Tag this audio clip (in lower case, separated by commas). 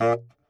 woodwind instrument, musical instrument, music